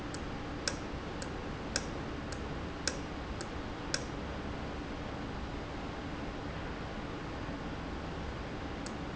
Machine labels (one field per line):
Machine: valve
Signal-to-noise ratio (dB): -6 dB